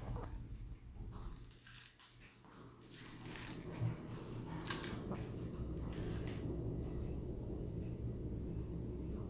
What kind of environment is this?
elevator